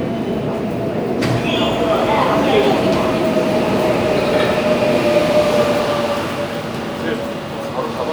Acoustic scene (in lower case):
subway station